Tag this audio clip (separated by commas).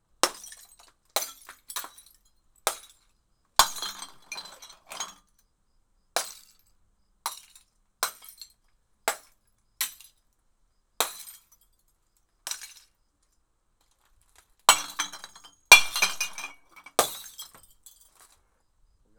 Glass, Shatter